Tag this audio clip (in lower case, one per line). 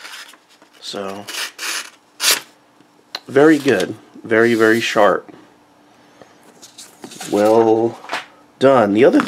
inside a small room
speech